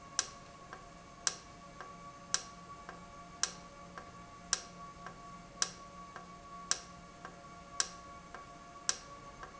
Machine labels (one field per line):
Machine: valve